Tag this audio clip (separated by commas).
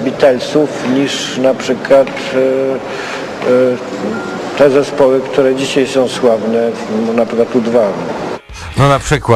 Speech